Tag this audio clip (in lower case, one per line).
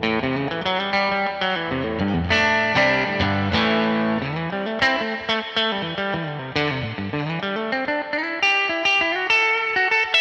guitar
plucked string instrument
musical instrument
music
inside a small room